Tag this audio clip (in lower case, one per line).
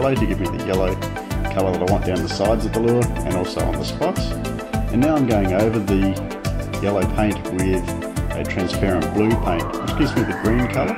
music
speech